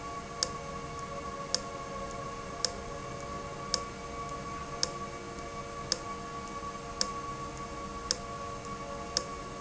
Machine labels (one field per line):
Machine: valve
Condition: abnormal